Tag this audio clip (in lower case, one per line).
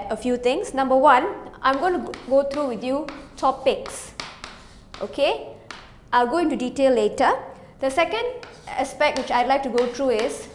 speech